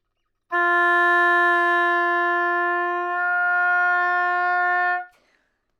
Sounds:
Musical instrument, woodwind instrument, Music

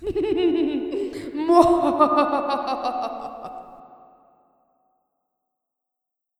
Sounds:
Laughter, Human voice

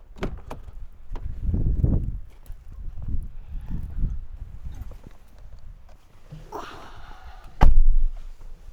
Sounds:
Motor vehicle (road), Vehicle, Wind, Car

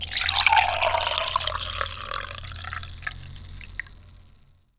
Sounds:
Liquid, Pour, Fill (with liquid), dribble

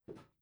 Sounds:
footsteps

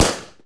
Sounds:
gunfire, Explosion

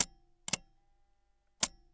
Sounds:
Mechanisms

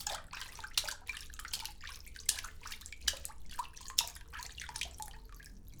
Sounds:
Liquid, Water, splatter

